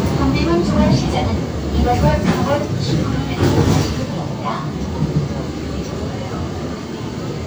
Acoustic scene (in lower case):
subway train